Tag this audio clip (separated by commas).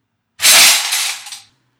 Crushing